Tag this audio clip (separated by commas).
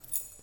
Keys jangling, home sounds